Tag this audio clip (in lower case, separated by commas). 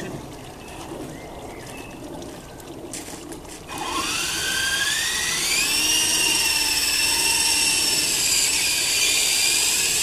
helicopter, outside, rural or natural